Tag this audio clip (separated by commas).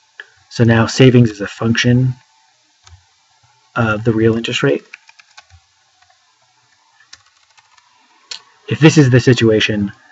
Clicking, Speech, inside a small room